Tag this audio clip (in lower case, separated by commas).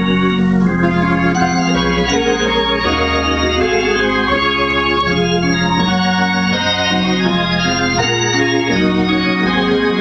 hammond organ, organ